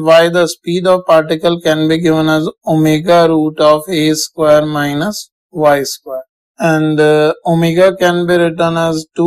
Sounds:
Speech

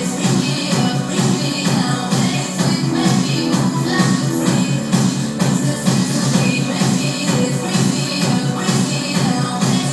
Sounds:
Music, Sound effect

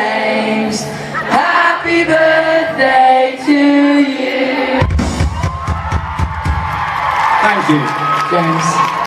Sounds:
Male singing, Speech, Music

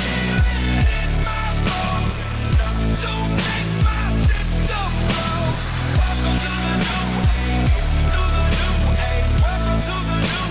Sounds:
Music

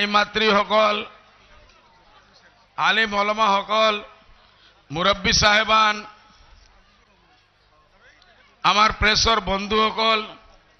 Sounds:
Speech, man speaking, monologue

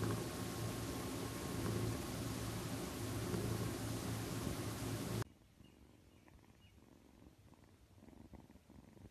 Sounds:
cat purring

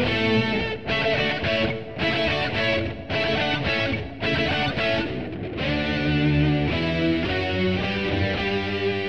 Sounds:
Musical instrument, Music, Guitar

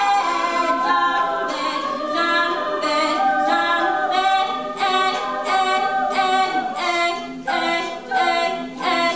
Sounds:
A capella, Vocal music

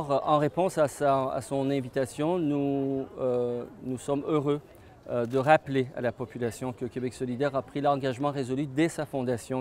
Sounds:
Speech

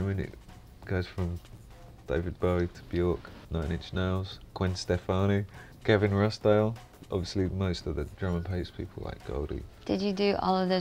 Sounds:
Speech, Music

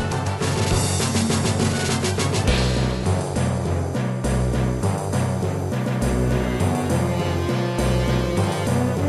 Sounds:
Music

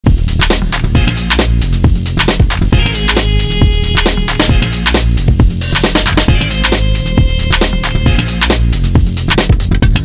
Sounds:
Drum and bass

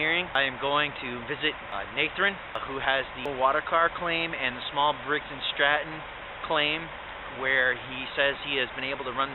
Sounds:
Speech

